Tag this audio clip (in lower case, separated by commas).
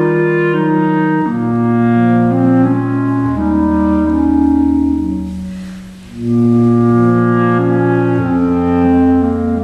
classical music, music, orchestra, musical instrument, clarinet